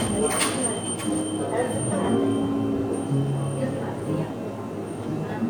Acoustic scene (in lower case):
cafe